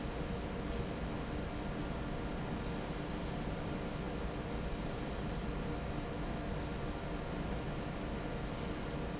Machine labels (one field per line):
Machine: fan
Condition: normal